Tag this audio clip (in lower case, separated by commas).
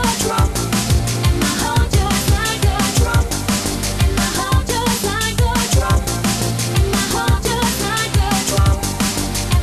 music